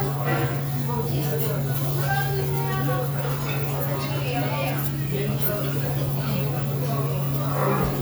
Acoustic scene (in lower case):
restaurant